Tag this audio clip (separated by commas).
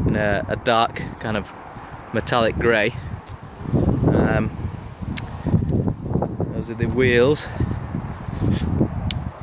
Speech